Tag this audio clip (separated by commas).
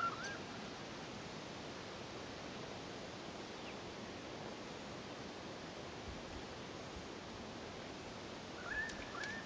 Vehicle, Water vehicle